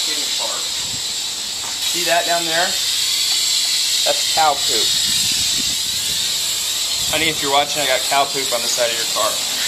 Male voice with large spraying noise in background